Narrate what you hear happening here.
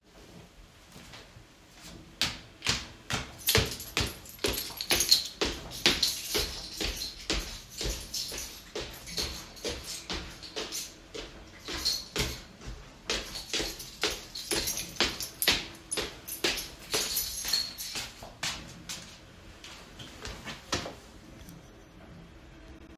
I carried the phone while moving through the hallway. The keychain produces short metallic jingling sounds, and footsteps are clearly audible during the movement. Both target classes are present in one continuous recording.